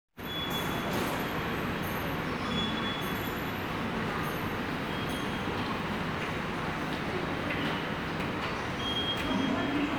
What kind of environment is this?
subway station